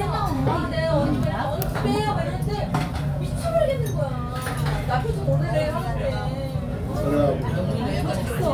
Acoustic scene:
restaurant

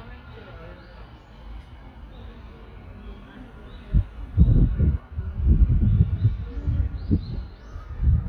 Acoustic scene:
residential area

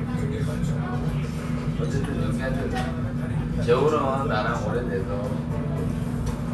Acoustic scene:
crowded indoor space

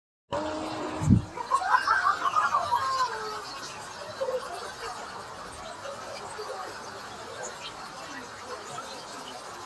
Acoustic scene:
park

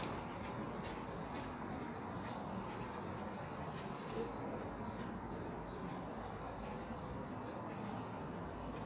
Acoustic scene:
park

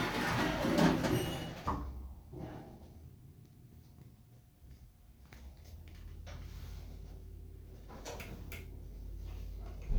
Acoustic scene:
elevator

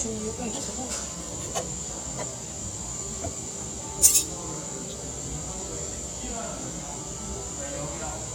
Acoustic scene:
cafe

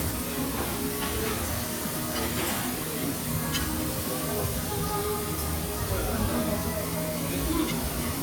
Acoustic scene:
restaurant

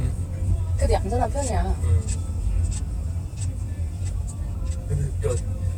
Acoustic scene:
car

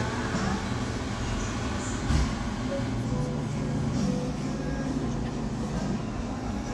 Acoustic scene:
cafe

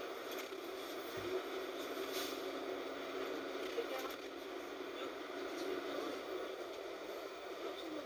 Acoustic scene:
bus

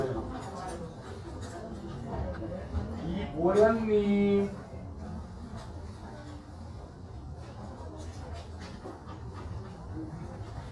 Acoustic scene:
crowded indoor space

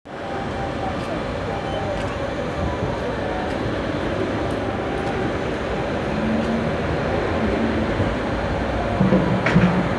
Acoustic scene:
street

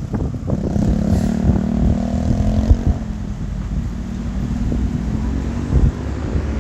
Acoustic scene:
street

